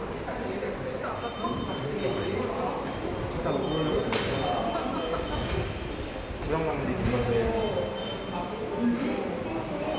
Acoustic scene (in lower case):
subway station